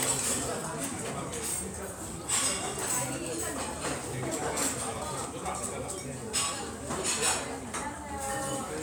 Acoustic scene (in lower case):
restaurant